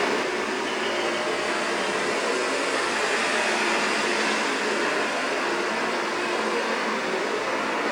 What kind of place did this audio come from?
street